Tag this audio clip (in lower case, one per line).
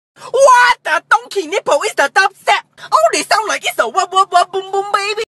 speech